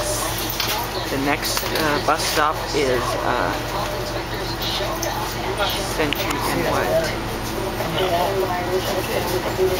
A large vehicle idles as people speak